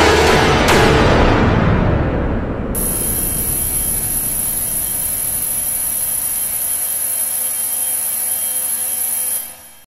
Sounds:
drill, music

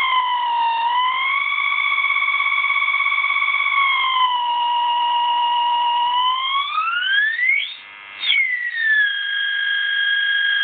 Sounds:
distortion

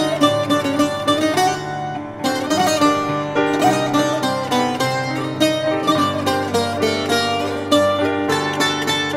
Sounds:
music, middle eastern music

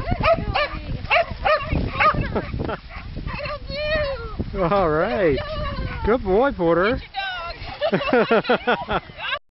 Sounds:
speech

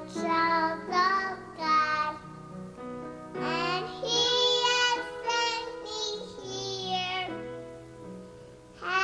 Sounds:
jingle (music), music, tender music

